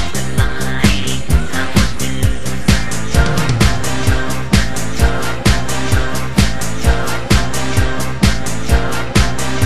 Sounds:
Pop music, Music

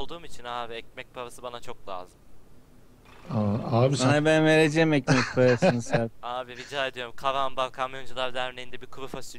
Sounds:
Speech

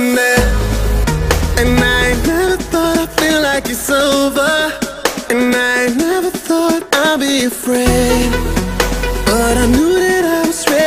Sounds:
Music

